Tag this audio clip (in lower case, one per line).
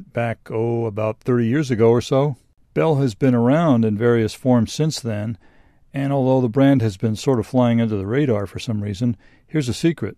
speech